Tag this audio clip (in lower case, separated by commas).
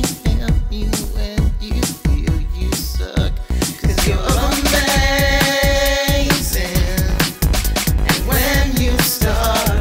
music, funk